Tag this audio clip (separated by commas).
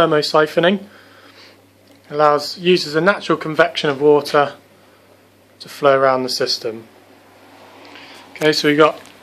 Speech